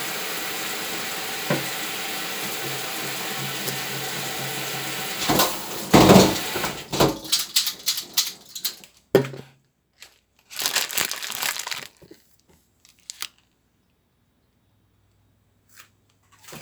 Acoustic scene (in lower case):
kitchen